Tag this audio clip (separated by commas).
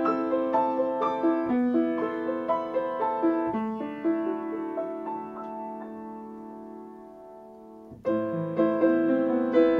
Music